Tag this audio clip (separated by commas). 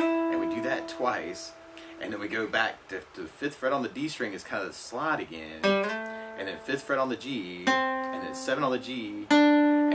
Music, Speech, Steel guitar